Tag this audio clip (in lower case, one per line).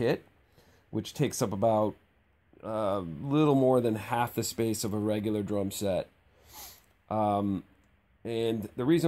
speech